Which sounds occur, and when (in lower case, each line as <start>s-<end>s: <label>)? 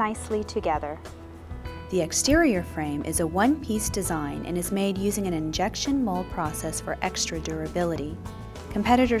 0.0s-0.9s: female speech
0.0s-9.2s: music
1.9s-8.1s: female speech